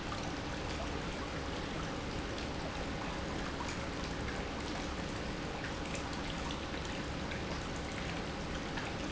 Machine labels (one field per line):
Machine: pump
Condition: normal